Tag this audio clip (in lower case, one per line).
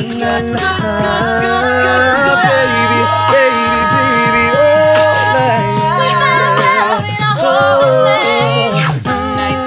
music